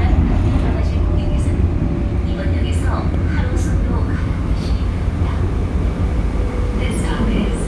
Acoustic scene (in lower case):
subway train